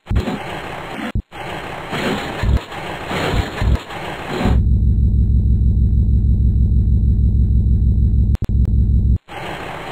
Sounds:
vehicle
car

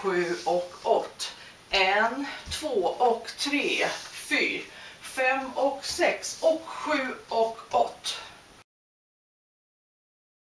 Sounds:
speech

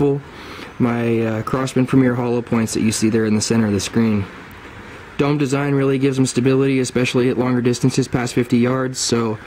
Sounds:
speech

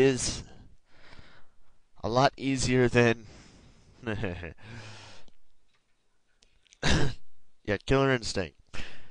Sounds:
speech

